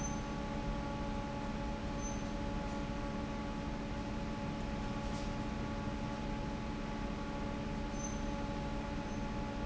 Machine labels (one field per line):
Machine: fan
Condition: normal